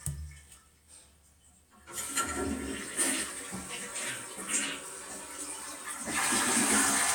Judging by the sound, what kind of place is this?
restroom